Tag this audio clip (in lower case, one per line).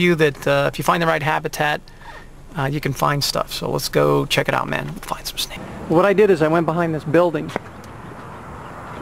speech